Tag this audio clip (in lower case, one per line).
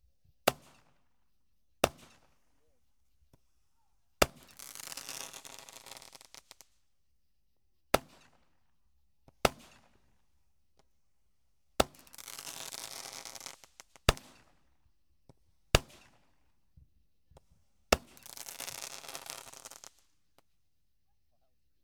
fireworks
explosion